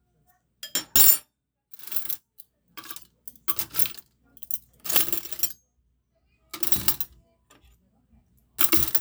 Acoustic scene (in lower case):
kitchen